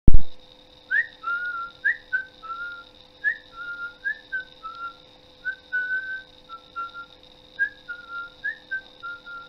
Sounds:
Whistling

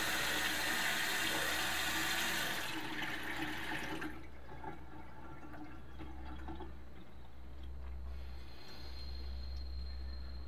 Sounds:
Water, Water tap, Sink (filling or washing)

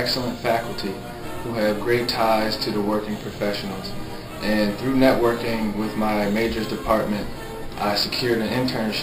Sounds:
Speech, Music

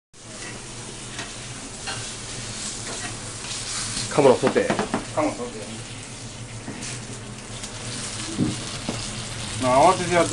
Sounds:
Stir, Frying (food), Sizzle

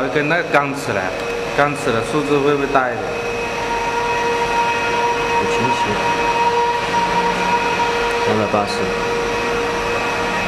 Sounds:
Speech

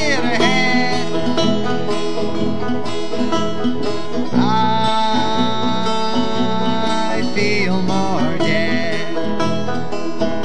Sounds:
Bluegrass, Music

